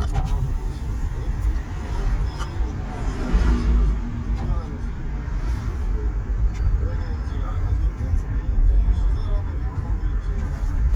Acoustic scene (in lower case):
car